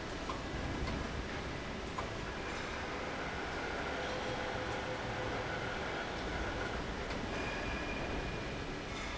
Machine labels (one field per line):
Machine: fan